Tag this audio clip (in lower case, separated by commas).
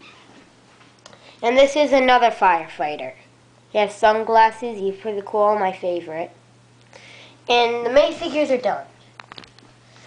speech